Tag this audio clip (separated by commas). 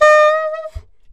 Musical instrument, Wind instrument, Music